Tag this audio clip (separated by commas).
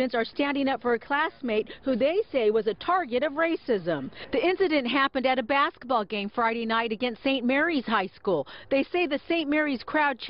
Speech